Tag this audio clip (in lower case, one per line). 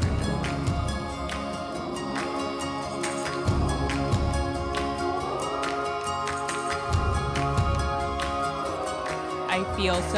music
speech